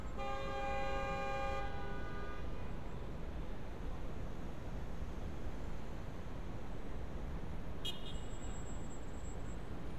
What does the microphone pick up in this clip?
car horn